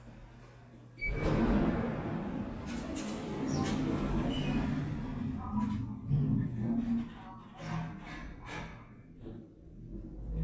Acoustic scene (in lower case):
elevator